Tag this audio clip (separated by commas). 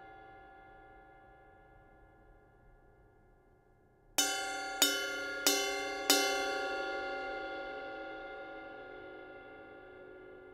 Music